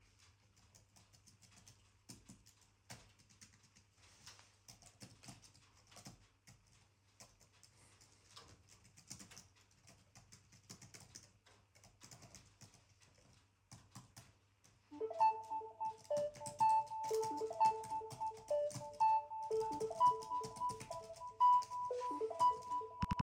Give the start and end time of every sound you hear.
[0.53, 22.96] keyboard typing
[14.91, 23.03] phone ringing

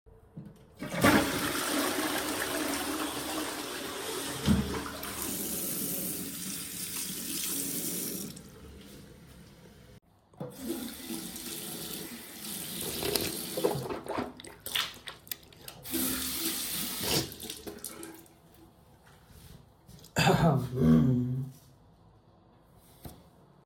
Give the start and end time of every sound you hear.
[0.74, 9.93] toilet flushing
[5.00, 8.48] running water
[10.37, 14.14] running water
[15.80, 17.41] running water

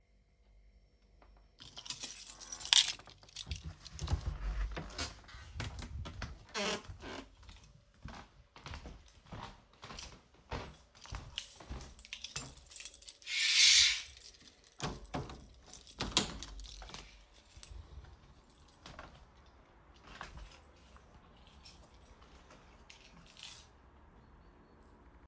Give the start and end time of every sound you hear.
[1.60, 3.65] keys
[4.29, 7.37] door
[7.93, 13.21] footsteps
[10.46, 13.16] keys
[14.74, 17.12] door
[15.23, 17.20] keys
[18.80, 19.14] footsteps
[20.03, 20.47] footsteps
[22.86, 23.63] keys

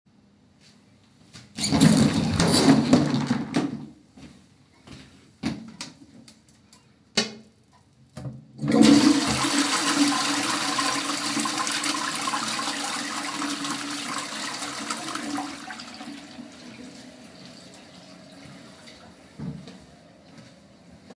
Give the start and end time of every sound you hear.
[1.50, 3.82] door
[4.00, 6.63] footsteps
[8.19, 21.15] toilet flushing

